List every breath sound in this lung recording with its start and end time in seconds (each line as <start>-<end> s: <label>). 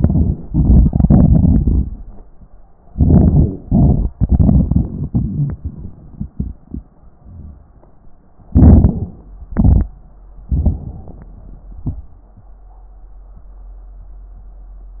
0.00-0.41 s: inhalation
0.46-2.19 s: exhalation
2.92-3.51 s: inhalation
8.51-9.11 s: inhalation
8.51-9.11 s: crackles
9.52-9.88 s: exhalation
9.52-9.88 s: crackles
10.47-11.30 s: inhalation
11.82-12.10 s: exhalation